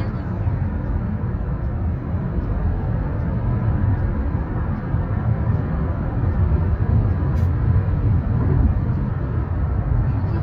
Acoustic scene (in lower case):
car